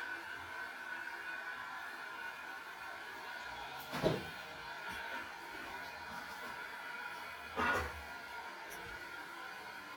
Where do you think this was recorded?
in a restroom